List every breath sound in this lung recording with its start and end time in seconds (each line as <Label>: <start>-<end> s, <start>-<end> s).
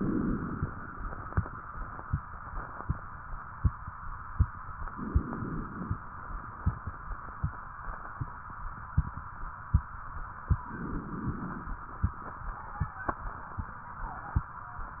Inhalation: 0.00-0.63 s, 4.91-5.98 s, 10.70-11.86 s